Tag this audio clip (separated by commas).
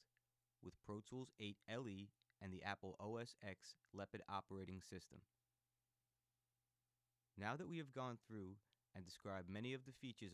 Speech